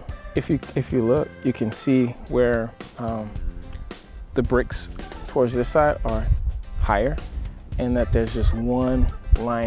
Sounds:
music, speech

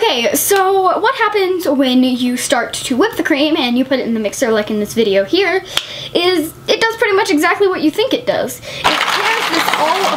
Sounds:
child speech, speech

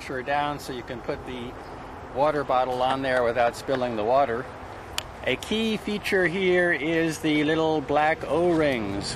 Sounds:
waterfall, speech

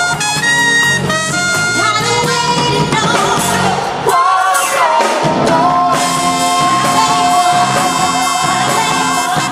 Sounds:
singing, saxophone

